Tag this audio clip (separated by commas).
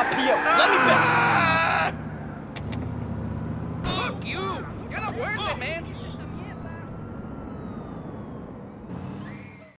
Vehicle, Car, Skidding, Speech